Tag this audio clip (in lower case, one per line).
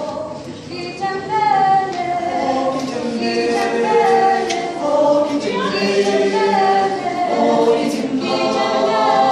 choir